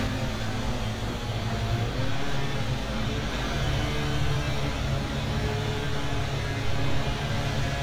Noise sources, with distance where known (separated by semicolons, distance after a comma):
unidentified powered saw, near